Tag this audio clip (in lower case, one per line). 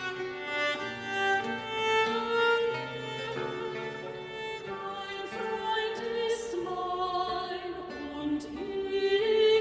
string section
classical music
music
musical instrument
singing